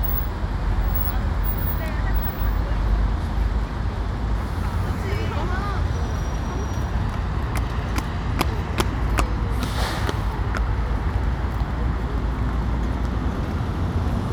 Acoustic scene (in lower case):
street